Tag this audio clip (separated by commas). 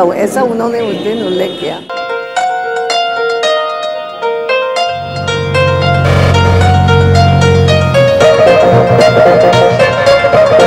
Speech, Music